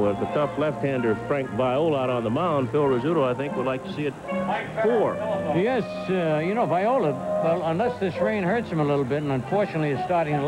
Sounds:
music, speech

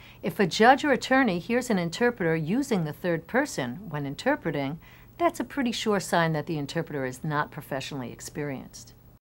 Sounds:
speech, female speech

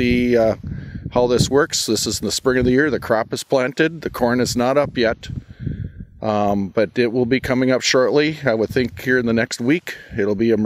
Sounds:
speech

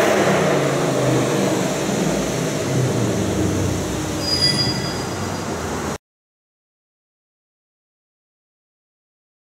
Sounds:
car, air brake, vehicle

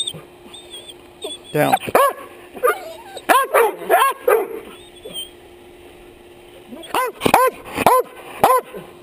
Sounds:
dog bow-wow, bow-wow, speech

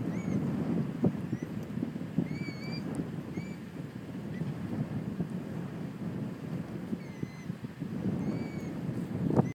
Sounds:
bird, animal

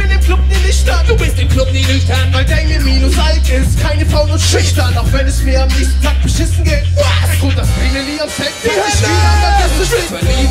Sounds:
music, sound effect

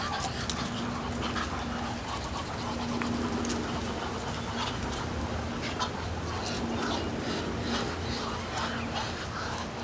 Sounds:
animal, duck

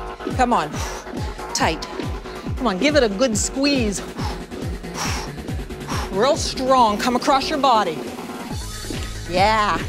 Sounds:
music, speech

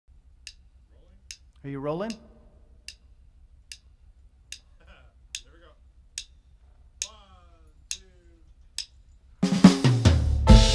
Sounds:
music, drum, drum kit

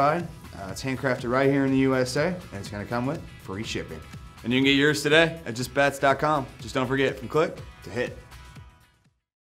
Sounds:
speech, music

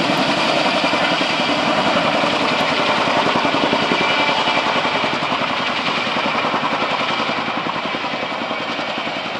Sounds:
vehicle, outside, rural or natural, helicopter

